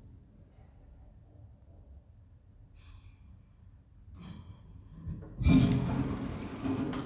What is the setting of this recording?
elevator